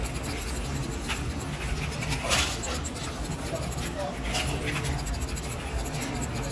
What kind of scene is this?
crowded indoor space